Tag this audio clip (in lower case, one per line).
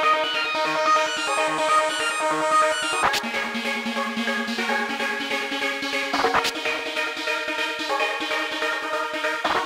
techno
music